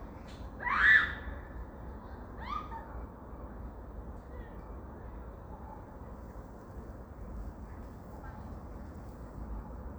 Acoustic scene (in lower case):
park